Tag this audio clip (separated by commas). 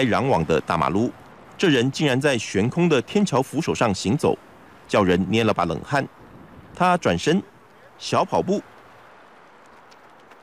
outside, urban or man-made, Speech